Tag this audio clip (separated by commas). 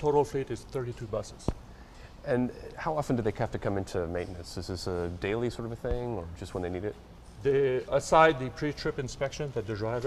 Speech